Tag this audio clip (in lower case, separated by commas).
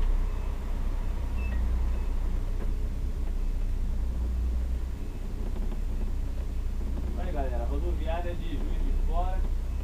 speech